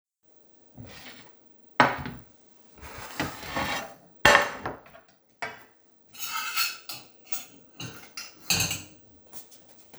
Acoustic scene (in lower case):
kitchen